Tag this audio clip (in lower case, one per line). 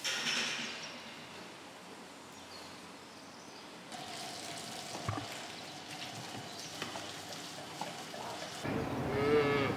cattle mooing